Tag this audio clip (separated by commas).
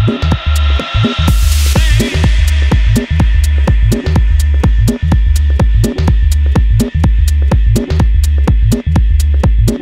Music